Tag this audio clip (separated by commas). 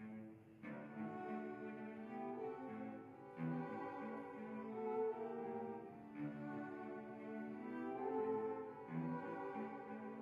Music